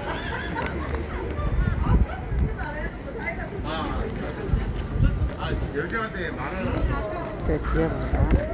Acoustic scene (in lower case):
residential area